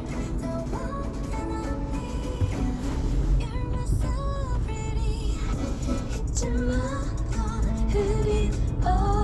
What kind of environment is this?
car